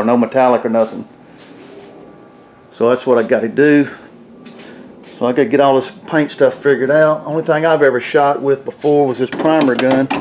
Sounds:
Speech, inside a large room or hall

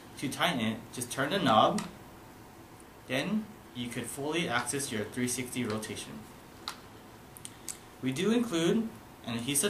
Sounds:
Speech

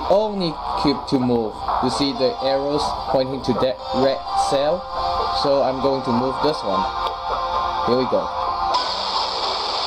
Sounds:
Speech, Music

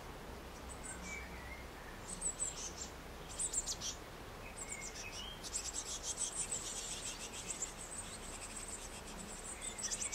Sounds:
black capped chickadee calling

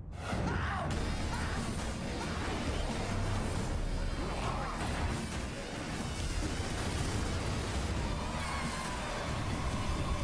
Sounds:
Music

